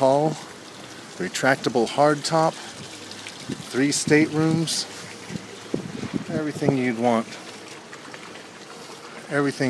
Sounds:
speech

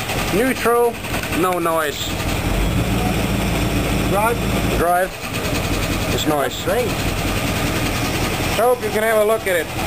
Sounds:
speech, car, engine, light engine (high frequency), vehicle

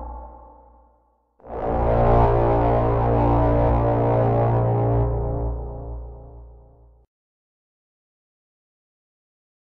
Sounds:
music

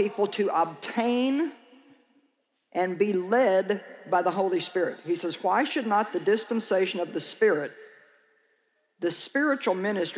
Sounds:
speech

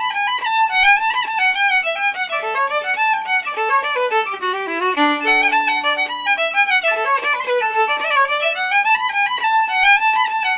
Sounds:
music, musical instrument, violin

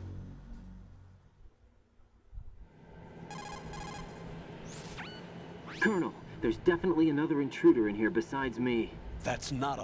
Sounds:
music, speech

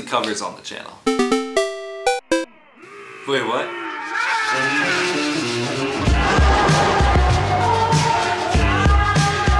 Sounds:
blues, speech, music, jazz

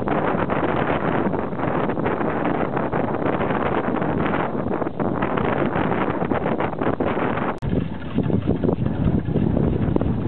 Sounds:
wind noise (microphone), wind

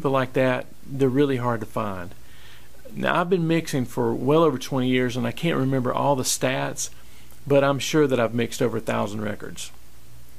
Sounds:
speech

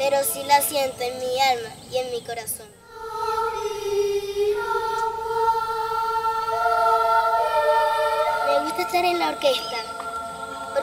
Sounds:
speech

